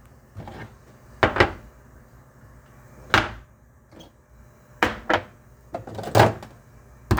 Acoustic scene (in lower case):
kitchen